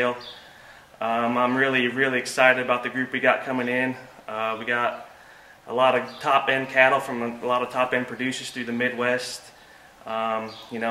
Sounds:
speech

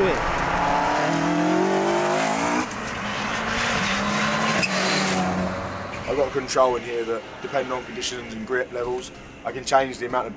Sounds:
race car, outside, urban or man-made, swish, speech, car, vehicle

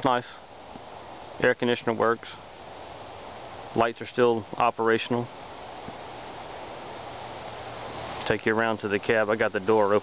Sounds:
speech

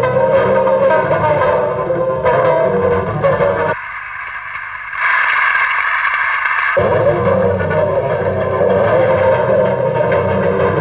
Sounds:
music, outside, urban or man-made

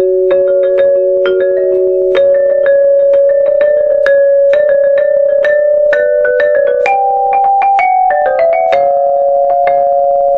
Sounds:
glockenspiel, mallet percussion, xylophone

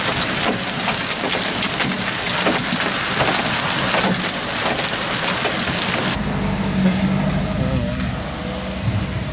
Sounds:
hail

